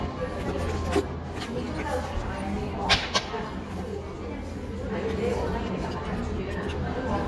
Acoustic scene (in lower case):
cafe